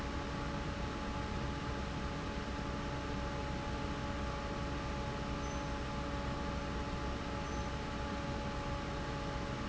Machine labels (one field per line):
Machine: fan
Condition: normal